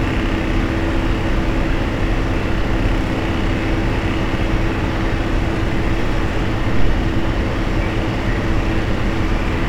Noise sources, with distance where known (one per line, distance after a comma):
engine of unclear size, near